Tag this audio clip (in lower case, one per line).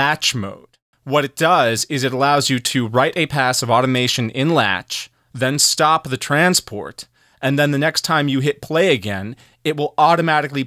speech